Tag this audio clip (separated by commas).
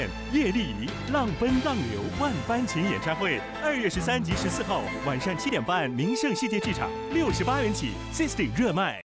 Speech, Music